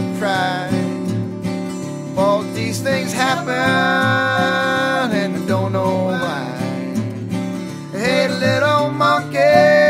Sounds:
Country, Music

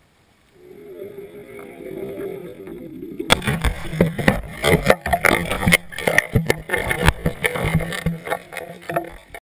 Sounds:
Explosion

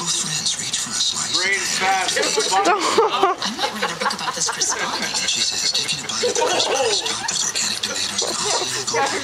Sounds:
Dog, Speech, outside, urban or man-made, Domestic animals

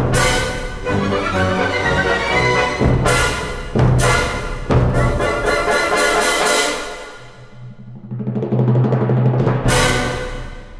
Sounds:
Timpani, Music

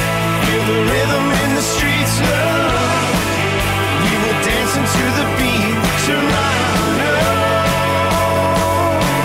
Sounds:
Music

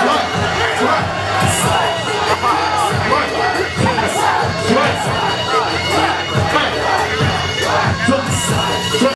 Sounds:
Music, Speech

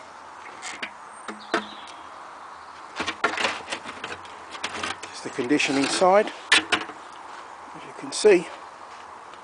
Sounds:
Speech

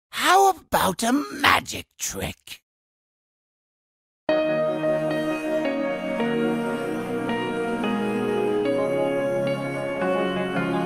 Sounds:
Music, Speech

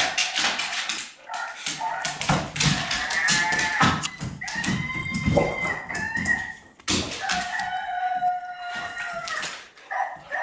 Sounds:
Bow-wow

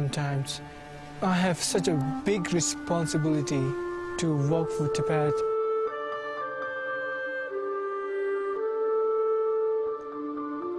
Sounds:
Music, Speech

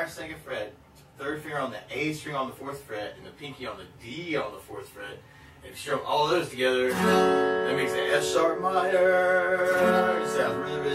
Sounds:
Speech, Music

